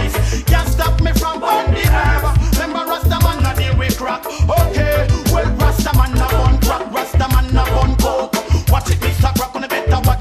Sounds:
reggae
music

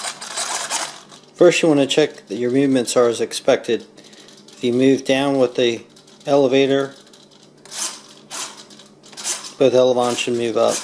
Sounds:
inside a small room
speech

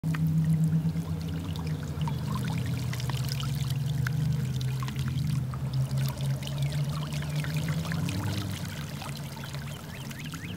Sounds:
bird

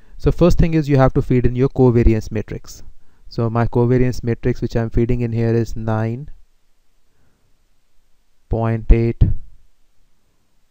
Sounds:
speech

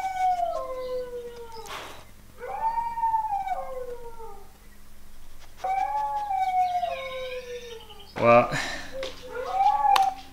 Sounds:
dog howling

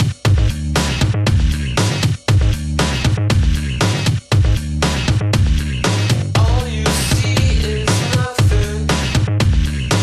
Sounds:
soundtrack music
music

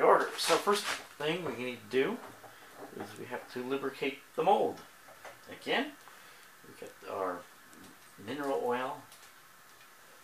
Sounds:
speech

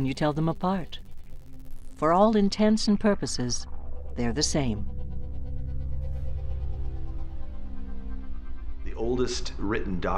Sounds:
music
speech
inside a small room

